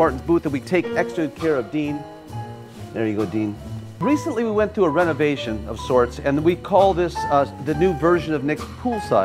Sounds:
speech, music

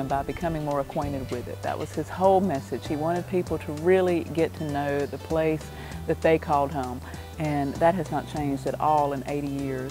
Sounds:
speech, music

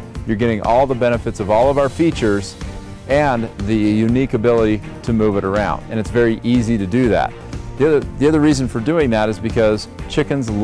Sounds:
music, speech

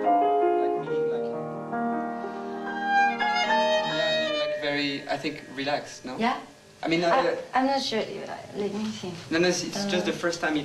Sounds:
sad music, music, speech

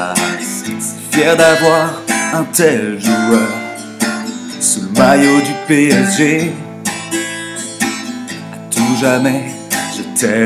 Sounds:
music

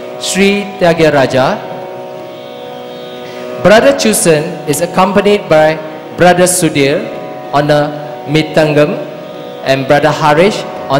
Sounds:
music, male singing, speech

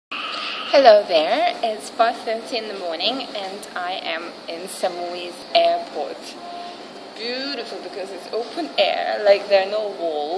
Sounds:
music, speech

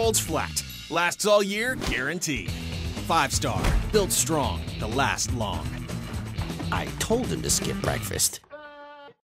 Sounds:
music, speech

